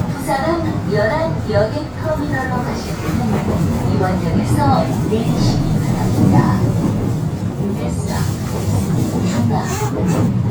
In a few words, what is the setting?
subway train